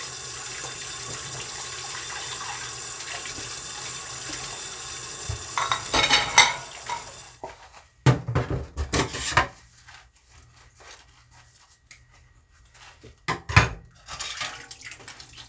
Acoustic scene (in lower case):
kitchen